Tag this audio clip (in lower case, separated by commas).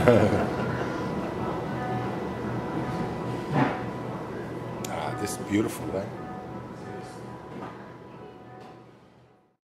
music, speech